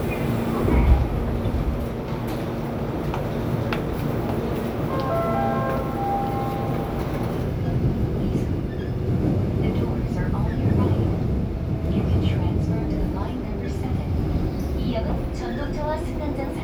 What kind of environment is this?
subway train